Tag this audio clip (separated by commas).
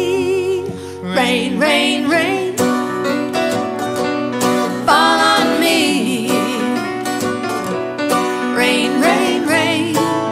Music